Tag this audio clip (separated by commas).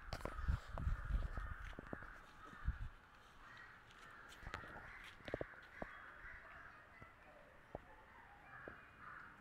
Animal